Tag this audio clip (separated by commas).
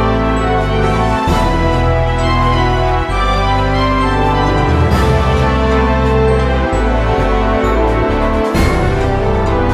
Video game music, Music, Theme music, Soundtrack music